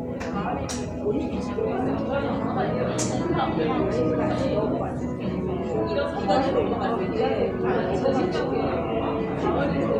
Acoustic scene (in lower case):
cafe